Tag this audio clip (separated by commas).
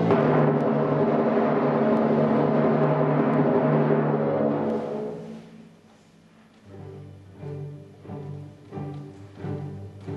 Timpani, Music